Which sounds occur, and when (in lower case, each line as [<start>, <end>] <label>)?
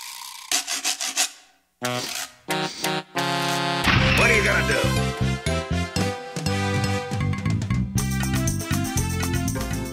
[0.01, 9.92] video game sound
[0.01, 9.92] music
[3.74, 5.13] male speech